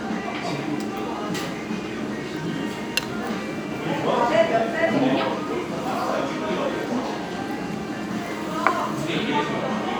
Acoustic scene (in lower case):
restaurant